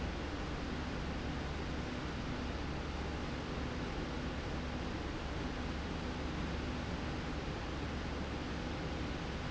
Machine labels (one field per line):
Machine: slide rail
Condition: normal